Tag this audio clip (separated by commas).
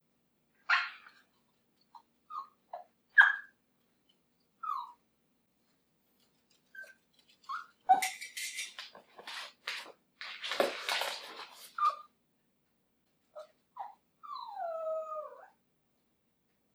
pets, Animal, Dog